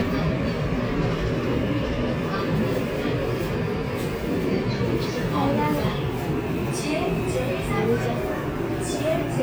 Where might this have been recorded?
on a subway train